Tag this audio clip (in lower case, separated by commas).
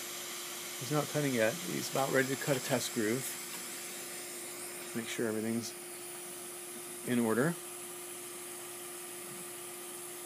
speech